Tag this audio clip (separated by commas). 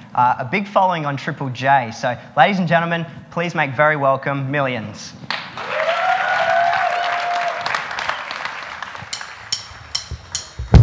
Speech